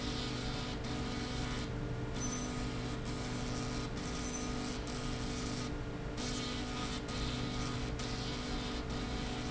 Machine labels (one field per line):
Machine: slide rail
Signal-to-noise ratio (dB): -6 dB